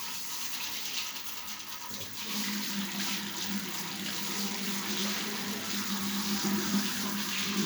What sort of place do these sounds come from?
restroom